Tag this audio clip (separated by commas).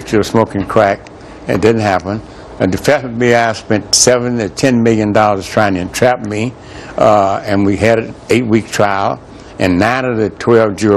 Speech